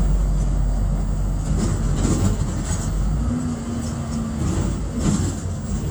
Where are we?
on a bus